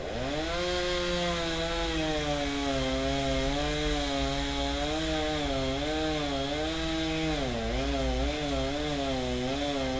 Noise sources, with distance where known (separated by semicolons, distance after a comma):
chainsaw, near